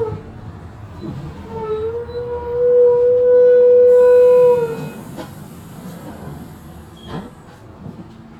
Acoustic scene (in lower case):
bus